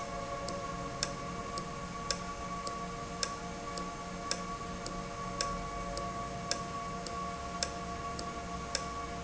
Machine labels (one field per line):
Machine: valve